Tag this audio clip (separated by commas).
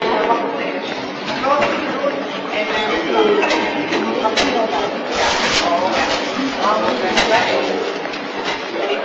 footsteps